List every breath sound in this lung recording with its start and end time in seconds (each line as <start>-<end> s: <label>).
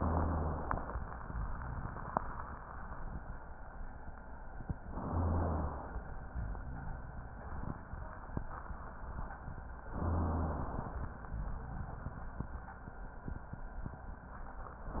4.90-6.02 s: inhalation
5.11-5.82 s: rhonchi
9.89-11.05 s: inhalation
9.99-10.60 s: rhonchi